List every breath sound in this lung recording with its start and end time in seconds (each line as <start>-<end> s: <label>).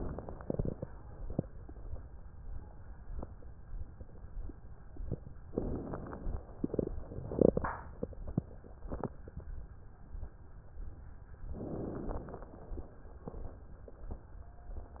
5.52-6.36 s: inhalation
5.52-6.36 s: crackles
11.57-12.41 s: inhalation
11.57-12.41 s: crackles